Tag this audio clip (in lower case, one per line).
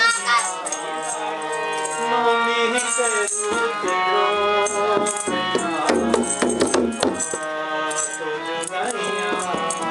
playing tabla